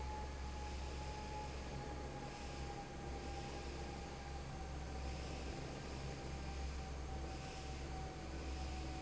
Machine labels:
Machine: fan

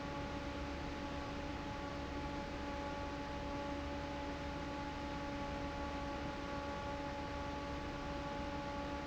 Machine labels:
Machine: fan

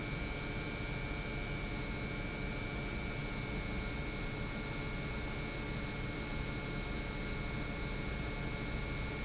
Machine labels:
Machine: pump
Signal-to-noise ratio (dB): -6 dB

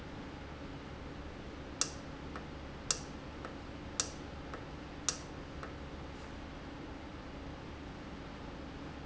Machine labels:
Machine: valve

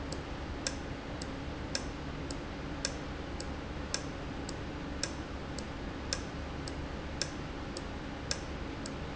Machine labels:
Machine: valve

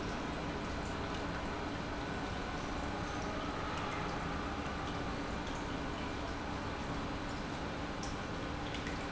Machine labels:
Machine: pump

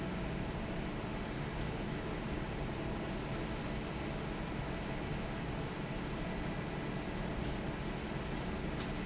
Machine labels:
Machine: fan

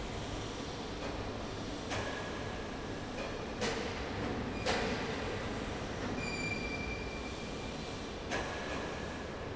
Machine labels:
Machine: fan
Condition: abnormal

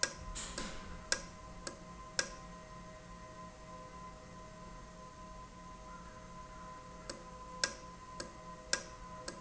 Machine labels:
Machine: valve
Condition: normal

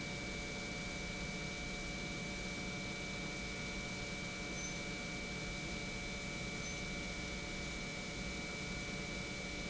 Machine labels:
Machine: pump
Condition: normal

